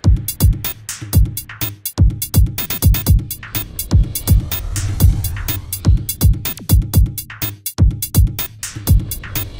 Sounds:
Music

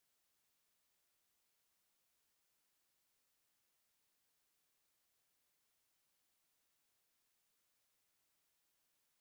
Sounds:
firing cannon

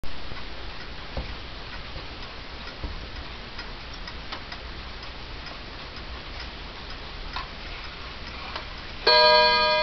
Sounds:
inside a large room or hall, Clock

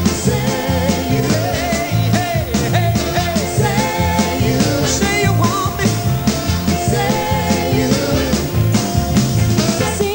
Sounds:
Music

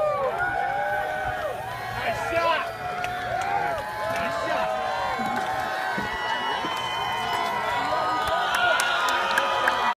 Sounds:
Speech

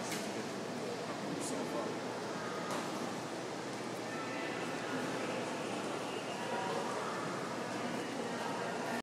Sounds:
Speech

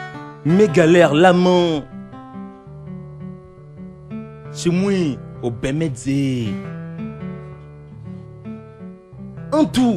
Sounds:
Music, Speech

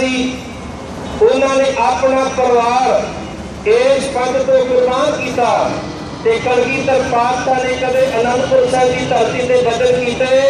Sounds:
Male speech, Narration, Speech

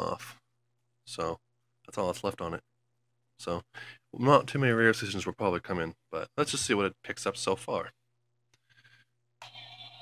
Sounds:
Speech

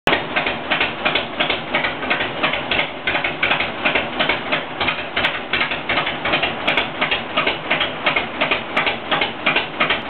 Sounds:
Vehicle, Motorcycle

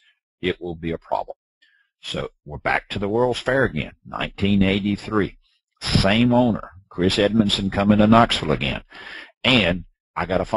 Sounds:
Speech

